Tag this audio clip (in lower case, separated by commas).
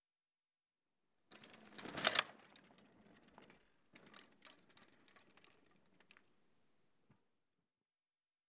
bicycle, vehicle